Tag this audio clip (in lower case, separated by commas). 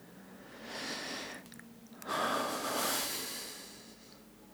human voice, sigh